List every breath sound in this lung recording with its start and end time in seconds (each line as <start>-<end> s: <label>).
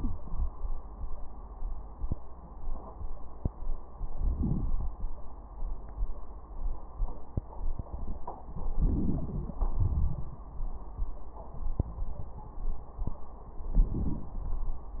4.17-4.90 s: inhalation
8.80-9.55 s: crackles
8.83-9.56 s: inhalation
9.58-10.44 s: exhalation
13.72-14.41 s: inhalation